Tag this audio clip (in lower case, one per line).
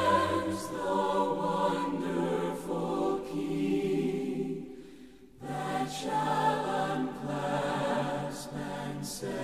music
song
a capella